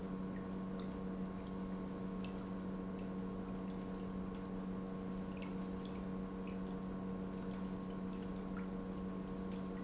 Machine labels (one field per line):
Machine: pump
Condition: normal